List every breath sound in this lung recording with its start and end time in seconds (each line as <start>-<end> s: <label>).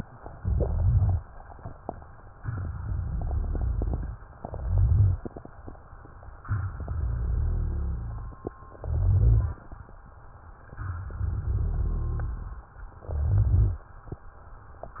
0.38-1.20 s: inhalation
0.38-1.20 s: crackles
2.35-4.20 s: exhalation
2.35-4.20 s: crackles
4.46-5.28 s: inhalation
4.46-5.28 s: crackles
6.49-8.48 s: exhalation
6.49-8.48 s: crackles
8.80-9.62 s: inhalation
8.80-9.62 s: crackles
10.62-12.62 s: exhalation
10.62-12.62 s: crackles
13.07-13.89 s: inhalation
13.07-13.89 s: crackles